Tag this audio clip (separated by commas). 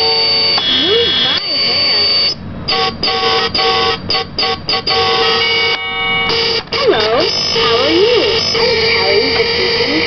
Speech